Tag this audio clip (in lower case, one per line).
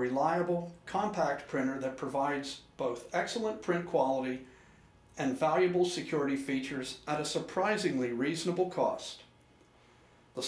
speech